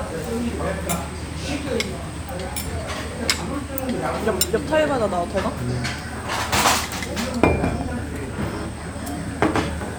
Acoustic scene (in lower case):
restaurant